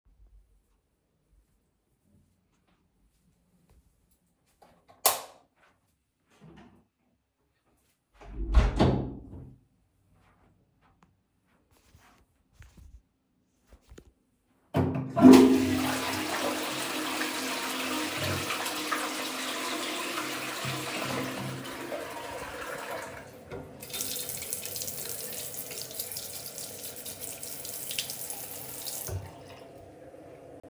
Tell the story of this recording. I turned the lights on closed a door then flushed a toilet after that used water